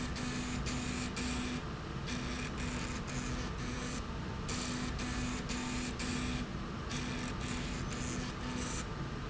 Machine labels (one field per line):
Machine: slide rail